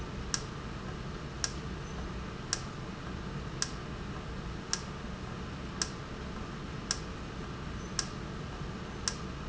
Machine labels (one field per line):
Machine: valve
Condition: normal